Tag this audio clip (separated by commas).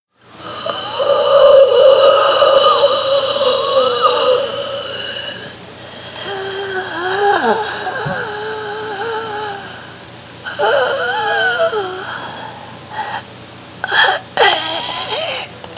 Hiss